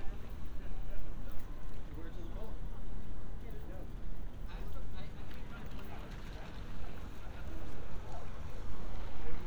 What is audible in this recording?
person or small group talking